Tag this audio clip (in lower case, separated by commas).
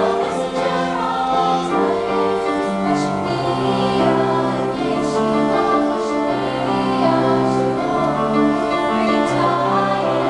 singing, music, gospel music, choir